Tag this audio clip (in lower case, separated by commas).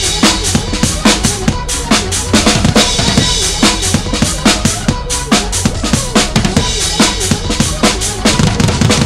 music, drum kit, drum, musical instrument